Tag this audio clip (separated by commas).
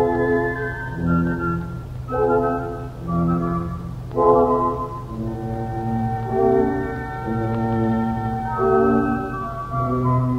Brass instrument, Music